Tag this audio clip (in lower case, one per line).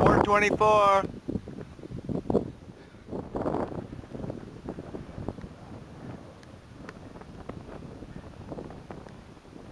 speech
run